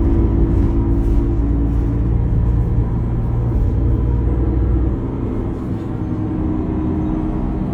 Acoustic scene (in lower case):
bus